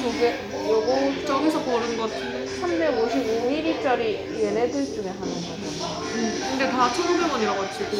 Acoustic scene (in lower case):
restaurant